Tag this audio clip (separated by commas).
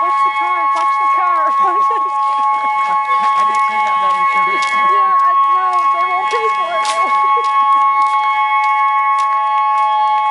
Siren, Speech